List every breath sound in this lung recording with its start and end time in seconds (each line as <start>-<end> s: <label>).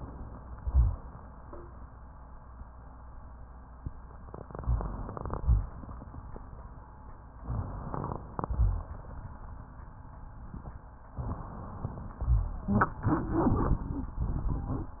0.54-0.95 s: rhonchi
4.36-5.38 s: inhalation
4.58-5.04 s: rhonchi
5.36-5.72 s: rhonchi
5.38-6.46 s: exhalation
7.33-8.41 s: inhalation
7.39-7.87 s: rhonchi
8.41-9.44 s: exhalation
8.43-8.92 s: rhonchi